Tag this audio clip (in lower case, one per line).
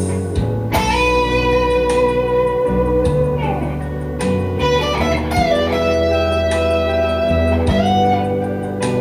music
strum
guitar
acoustic guitar
plucked string instrument
musical instrument